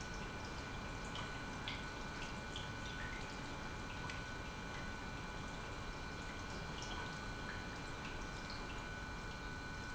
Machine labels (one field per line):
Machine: pump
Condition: normal